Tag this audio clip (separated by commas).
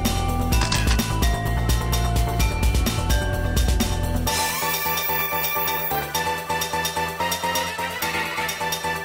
Music